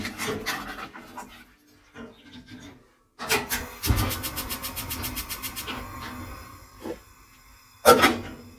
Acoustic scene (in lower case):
kitchen